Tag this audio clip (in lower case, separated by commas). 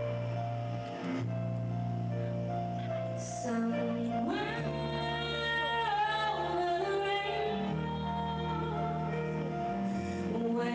female singing, music